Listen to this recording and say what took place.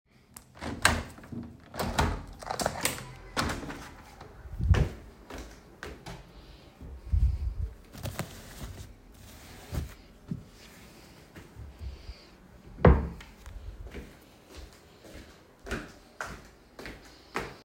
I opened the window at the start of the scene. I then walked across the bedroom with clearly audible footsteps toward the closet. I opened the closet door, picked out a piece of clothing, and closed the closet door.